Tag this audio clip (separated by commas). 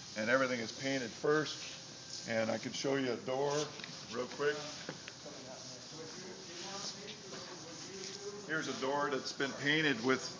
Speech